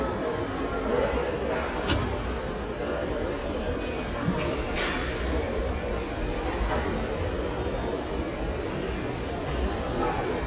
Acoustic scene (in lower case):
elevator